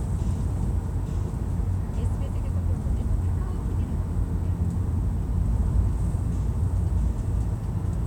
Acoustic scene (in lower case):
car